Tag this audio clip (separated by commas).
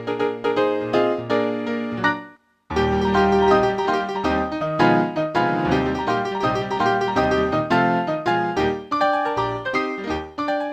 Music